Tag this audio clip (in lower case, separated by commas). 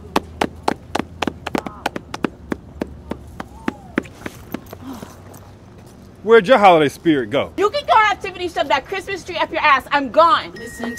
speech